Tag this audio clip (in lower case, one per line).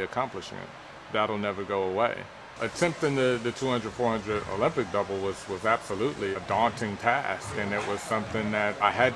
male speech
speech